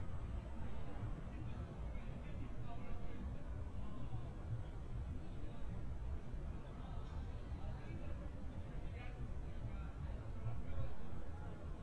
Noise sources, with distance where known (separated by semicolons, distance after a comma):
person or small group talking